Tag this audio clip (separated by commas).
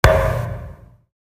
thud